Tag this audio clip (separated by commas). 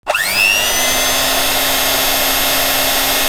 Engine, Domestic sounds